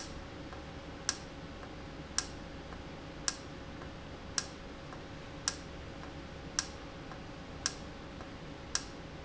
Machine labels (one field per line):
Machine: valve